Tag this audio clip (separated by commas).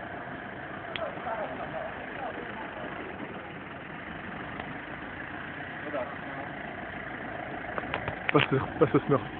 Speech